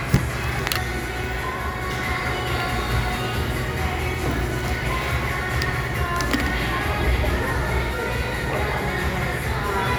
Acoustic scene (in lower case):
crowded indoor space